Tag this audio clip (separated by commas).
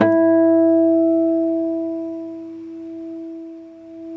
Guitar, Plucked string instrument, Musical instrument, Music, Acoustic guitar